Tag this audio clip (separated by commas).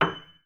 Music, Musical instrument, Keyboard (musical), Piano